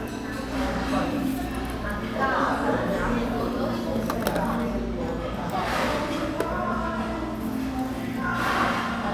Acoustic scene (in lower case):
cafe